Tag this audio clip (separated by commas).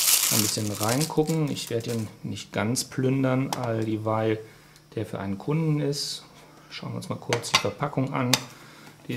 Speech